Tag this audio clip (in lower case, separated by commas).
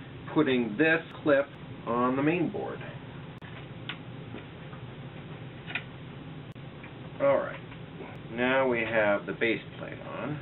inside a small room, speech